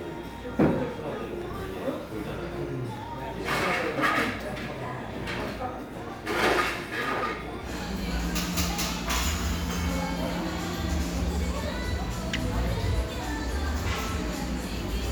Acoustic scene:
cafe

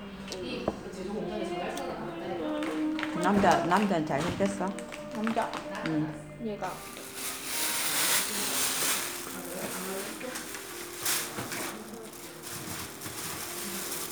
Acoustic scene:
crowded indoor space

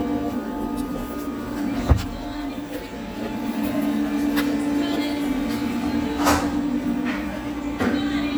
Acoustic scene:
cafe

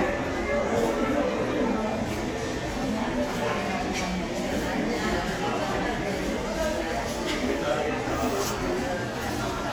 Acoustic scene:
crowded indoor space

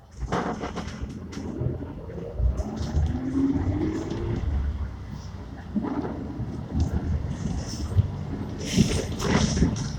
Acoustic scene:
bus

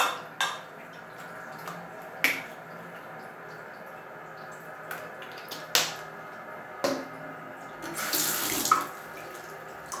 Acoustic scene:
restroom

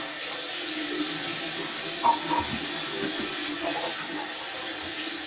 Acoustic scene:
restroom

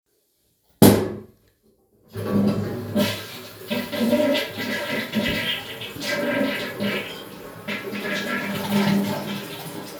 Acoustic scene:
restroom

